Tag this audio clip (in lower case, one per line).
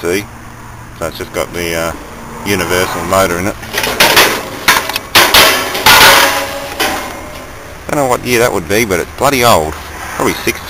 speech